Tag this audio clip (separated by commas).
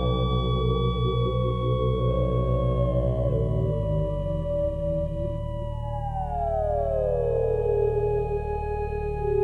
Ambient music, Theremin, Music